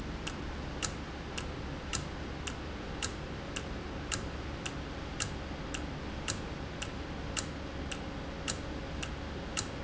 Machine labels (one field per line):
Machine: valve